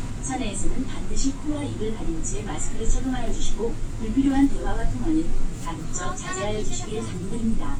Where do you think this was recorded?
on a bus